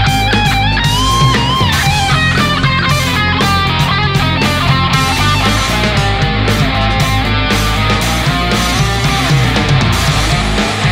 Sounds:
music
guitar
musical instrument
plucked string instrument
electric guitar
acoustic guitar

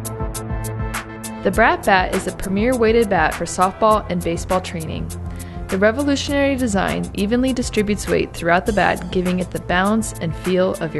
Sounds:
music
speech

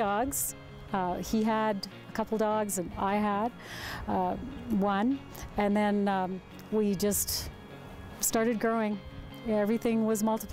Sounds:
speech
music

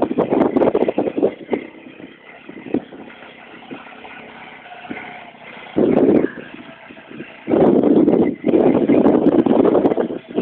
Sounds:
vehicle

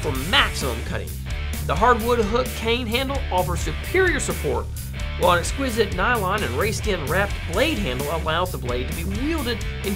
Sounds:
music
speech

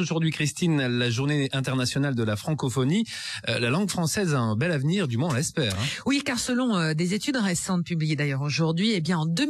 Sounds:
speech

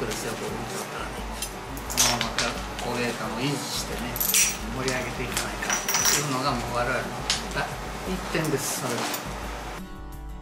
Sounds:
music
speech

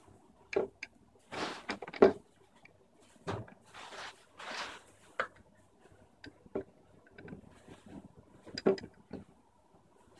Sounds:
silence
inside a small room

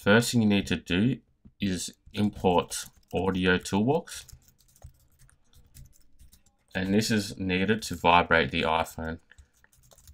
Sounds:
speech
computer keyboard

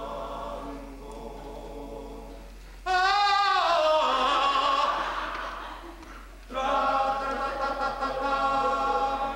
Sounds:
singing
choir

